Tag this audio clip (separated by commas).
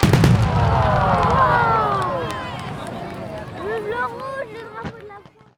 Human group actions, Explosion, Crowd, Fireworks